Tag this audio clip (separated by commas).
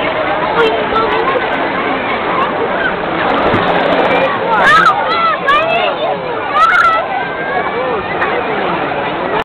Speech, Water